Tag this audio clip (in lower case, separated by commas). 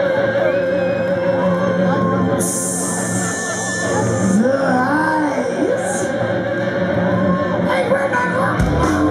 musical instrument, music, percussion, guitar, drum